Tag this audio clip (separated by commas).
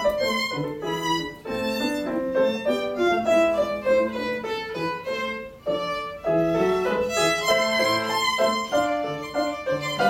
Violin, fiddle, Musical instrument, Music